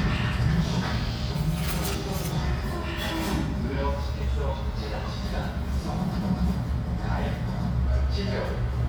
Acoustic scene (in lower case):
restaurant